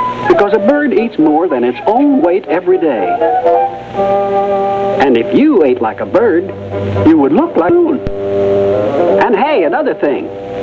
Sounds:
speech
music

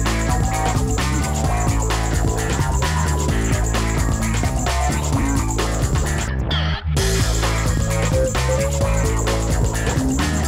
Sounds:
music

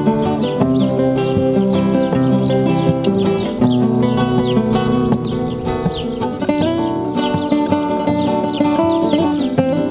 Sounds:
acoustic guitar
musical instrument
guitar
plucked string instrument
strum
music

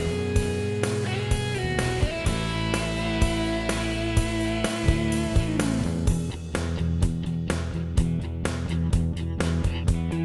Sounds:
music

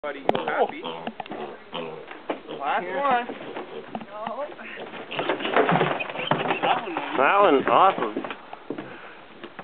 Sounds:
speech
animal
pig

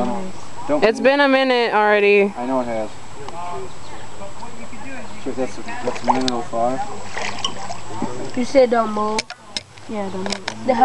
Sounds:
stream
speech

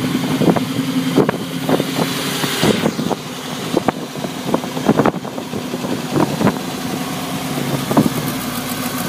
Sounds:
vehicle
truck

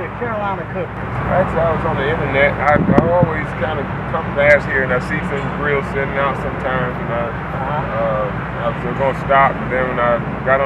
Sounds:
speech

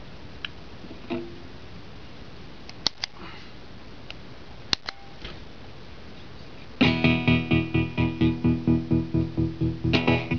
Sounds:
music
effects unit
guitar

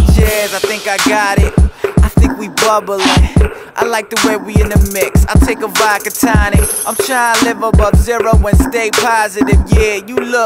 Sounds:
music

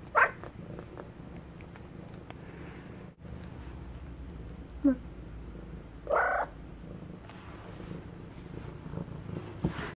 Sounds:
pets
cat
animal
purr

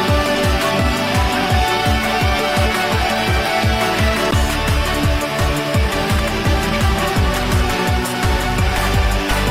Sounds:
music
background music

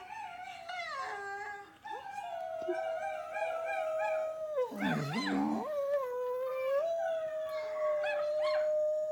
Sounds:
dog howling

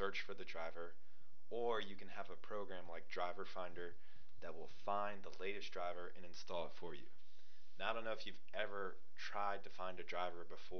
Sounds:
speech

